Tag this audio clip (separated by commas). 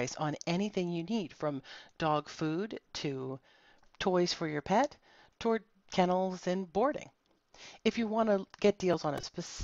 Speech